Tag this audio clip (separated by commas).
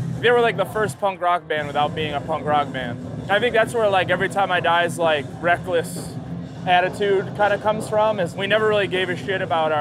Speech